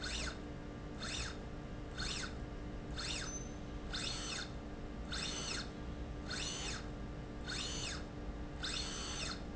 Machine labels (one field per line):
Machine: slide rail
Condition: normal